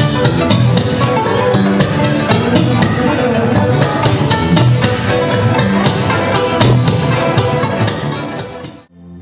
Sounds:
Bowed string instrument, fiddle

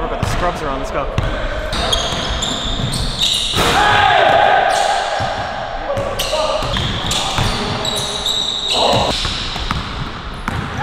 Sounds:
basketball bounce

